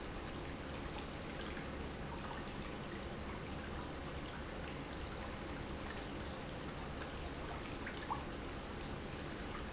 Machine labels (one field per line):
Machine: pump